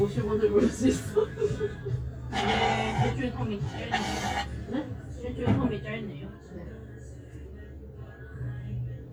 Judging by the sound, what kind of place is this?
cafe